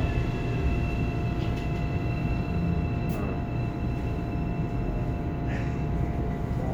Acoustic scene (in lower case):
subway train